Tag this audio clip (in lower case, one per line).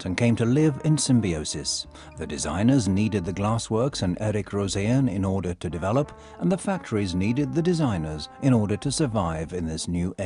music
speech